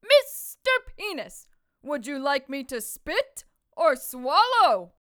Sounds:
Speech, Human voice, Shout, woman speaking, Yell

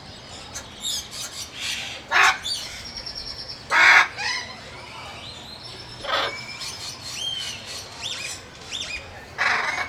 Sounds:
Animal, Bird, Wild animals

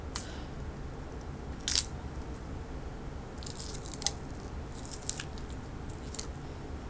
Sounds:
Crack

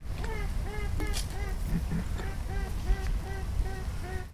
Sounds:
Bird, Animal, Wild animals

